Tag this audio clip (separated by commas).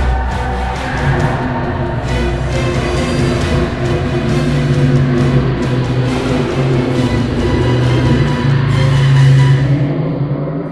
Music